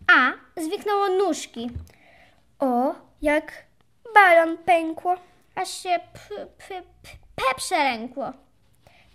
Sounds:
Speech

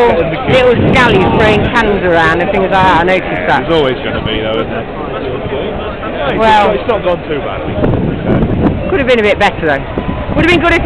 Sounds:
Speech

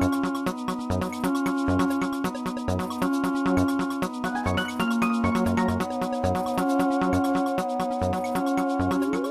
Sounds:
Music

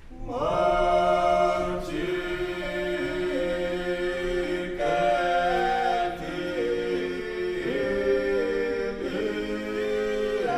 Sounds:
Choir

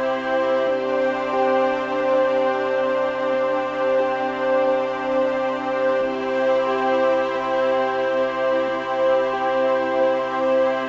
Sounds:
Background music, Music, Rhythm and blues

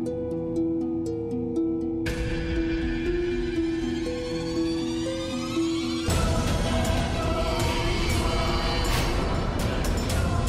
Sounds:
Music

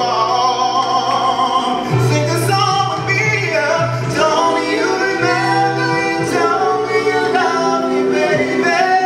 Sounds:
Music, Singing

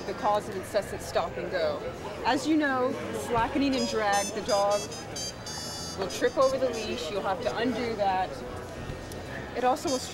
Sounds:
Music, Speech

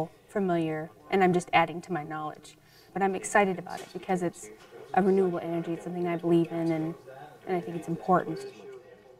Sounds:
Speech

